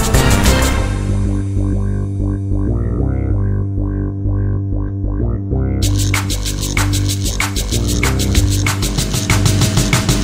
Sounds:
Drum and bass

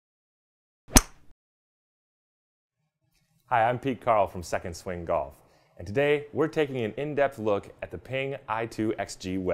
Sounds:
Ping, Speech

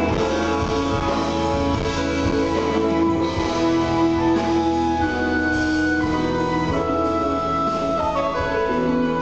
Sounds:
Rock music, Drum kit, Music, Progressive rock

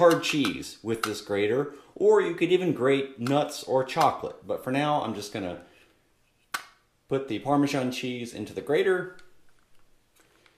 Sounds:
Speech, inside a small room

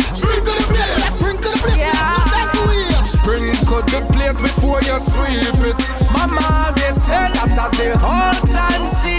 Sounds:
Music

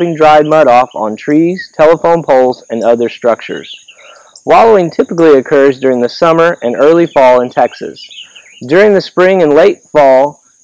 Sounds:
Speech

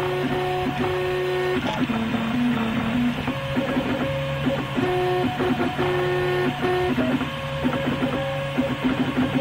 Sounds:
Printer

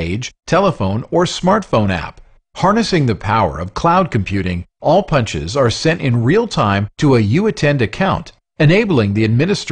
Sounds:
Speech

